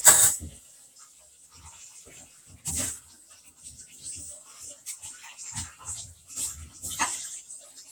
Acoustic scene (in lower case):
kitchen